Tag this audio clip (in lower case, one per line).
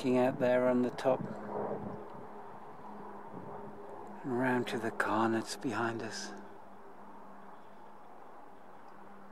speech